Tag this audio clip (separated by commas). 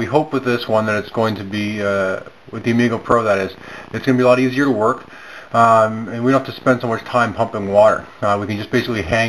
Speech